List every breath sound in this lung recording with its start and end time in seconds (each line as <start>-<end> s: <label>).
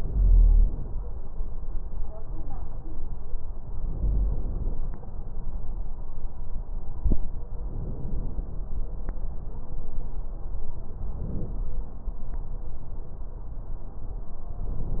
0.00-0.99 s: inhalation
3.85-4.84 s: inhalation
7.69-8.68 s: inhalation
11.05-11.70 s: inhalation